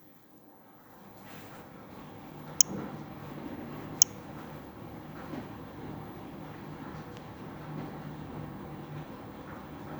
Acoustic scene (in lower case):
elevator